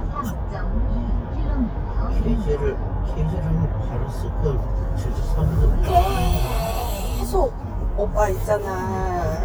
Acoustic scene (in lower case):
car